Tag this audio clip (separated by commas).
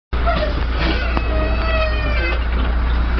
Door